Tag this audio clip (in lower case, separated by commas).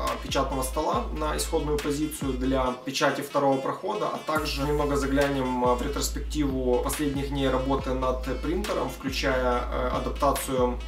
speech, music